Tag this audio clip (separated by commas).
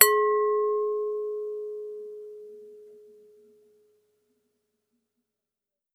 Glass